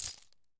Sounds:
domestic sounds, keys jangling

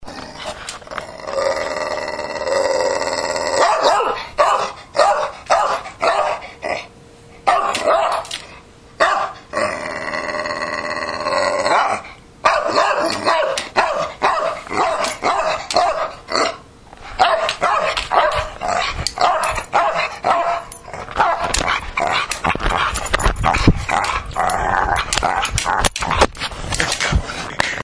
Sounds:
dog, animal, domestic animals

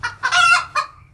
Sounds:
animal, livestock, rooster, fowl

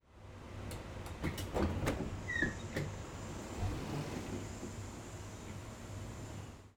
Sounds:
train, door, rail transport, home sounds, vehicle, sliding door

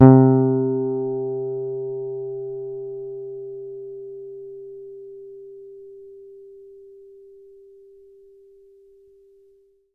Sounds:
guitar, musical instrument, electric guitar, bass guitar, plucked string instrument, music

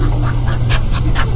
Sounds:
animal, dog, domestic animals

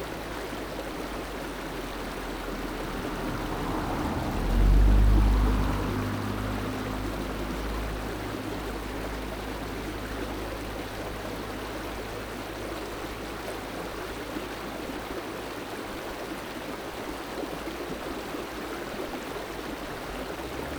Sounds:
stream, water

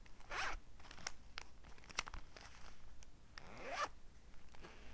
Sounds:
domestic sounds, zipper (clothing)

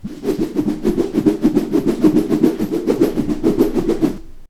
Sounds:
swish

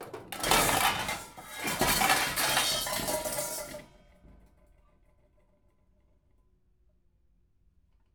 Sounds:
dishes, pots and pans, home sounds

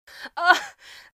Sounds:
human voice

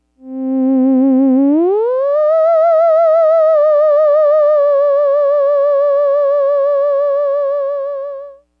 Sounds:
music, musical instrument

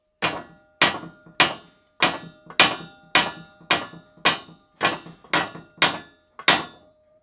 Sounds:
tools

